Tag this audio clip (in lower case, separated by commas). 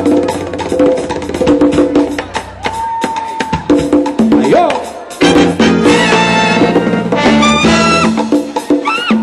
music, wood block, salsa music, music of latin america